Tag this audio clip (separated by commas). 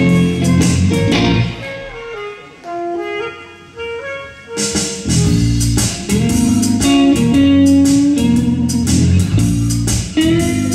Music